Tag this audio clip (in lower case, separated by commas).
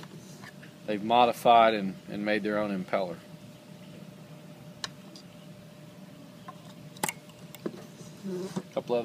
speech